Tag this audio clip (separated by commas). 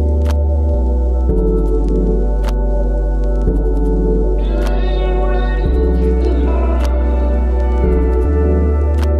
Music, Single-lens reflex camera